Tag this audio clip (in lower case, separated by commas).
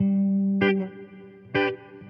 guitar, electric guitar, musical instrument, plucked string instrument, music